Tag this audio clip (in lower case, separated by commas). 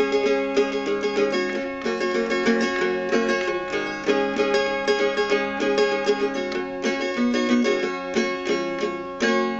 strum, plucked string instrument, guitar, music, musical instrument